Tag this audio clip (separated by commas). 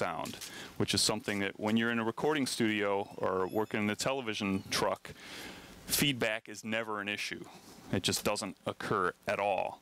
Speech